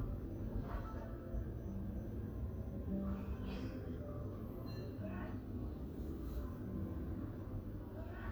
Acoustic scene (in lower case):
residential area